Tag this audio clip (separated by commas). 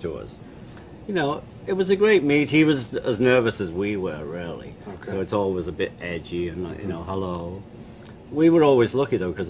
Speech, inside a small room